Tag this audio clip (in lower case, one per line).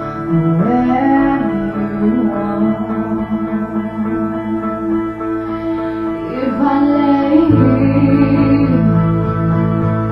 music
female singing